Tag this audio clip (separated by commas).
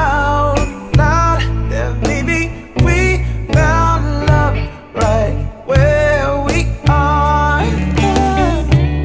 Musical instrument, Music, Guitar, Plucked string instrument, Singing, Soul music